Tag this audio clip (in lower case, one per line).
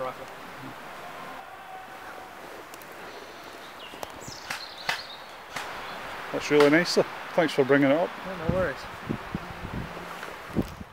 speech
outside, rural or natural